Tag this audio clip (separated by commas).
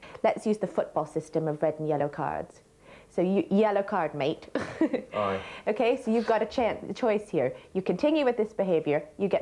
Speech